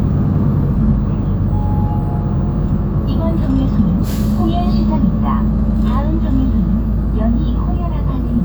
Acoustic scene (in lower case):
bus